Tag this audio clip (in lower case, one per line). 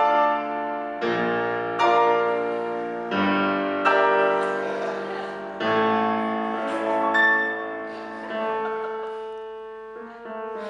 music
musical instrument